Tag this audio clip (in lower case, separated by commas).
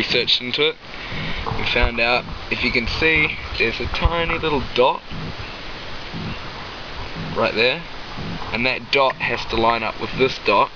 speech